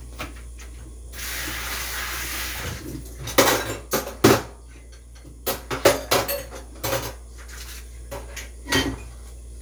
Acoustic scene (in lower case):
kitchen